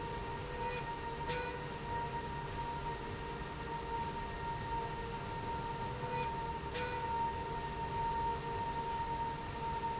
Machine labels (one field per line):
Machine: slide rail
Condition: normal